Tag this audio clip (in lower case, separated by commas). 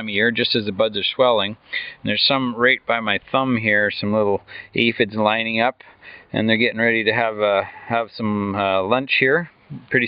speech